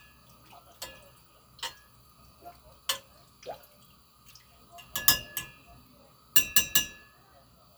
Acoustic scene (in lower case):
kitchen